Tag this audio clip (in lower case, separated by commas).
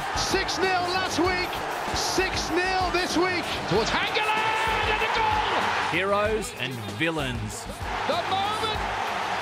speech, music